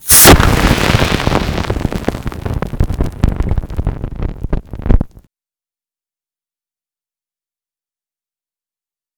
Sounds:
Explosion

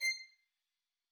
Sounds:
Musical instrument, Bowed string instrument, Music

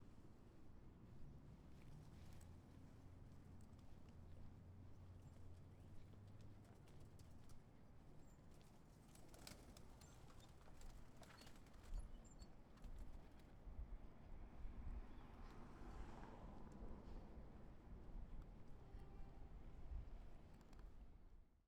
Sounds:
Animal, Bird, Wild animals

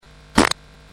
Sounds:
Fart

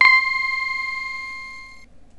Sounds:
Music, Musical instrument, Keyboard (musical)

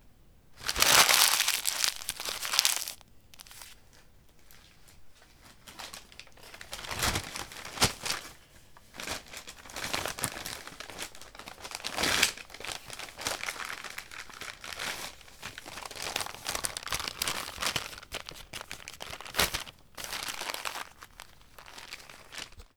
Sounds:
crinkling

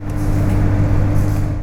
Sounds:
Microwave oven, home sounds

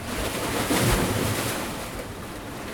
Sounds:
Water, Waves, Ocean

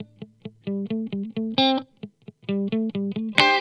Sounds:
Electric guitar, Guitar, Musical instrument, Music, Plucked string instrument

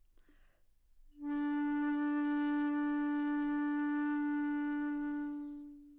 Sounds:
Music, Wind instrument, Musical instrument

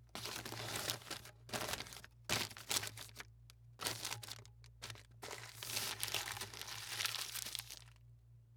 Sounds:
crinkling

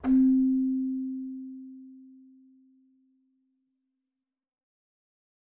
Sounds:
Music, Musical instrument, Keyboard (musical)

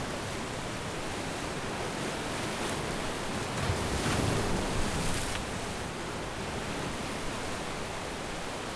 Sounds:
surf, Ocean, Water

